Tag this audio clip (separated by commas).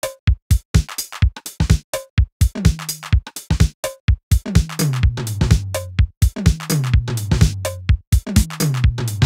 Music, Musical instrument, Electronic music, Synthesizer, Drum machine